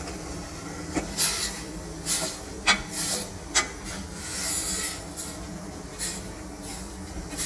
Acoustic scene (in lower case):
kitchen